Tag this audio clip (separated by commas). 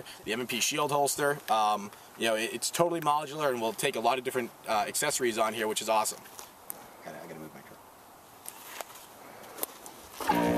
Speech, outside, rural or natural